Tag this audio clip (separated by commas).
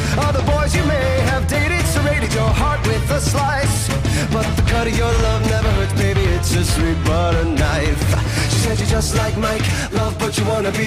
Music, Punk rock